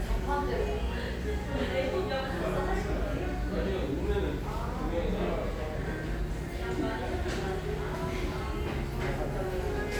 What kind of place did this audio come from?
restaurant